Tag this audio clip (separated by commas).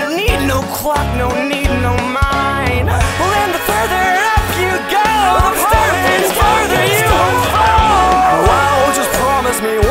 Music